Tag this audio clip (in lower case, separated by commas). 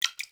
drip, liquid